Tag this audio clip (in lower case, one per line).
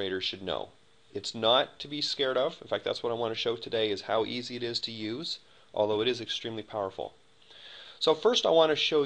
speech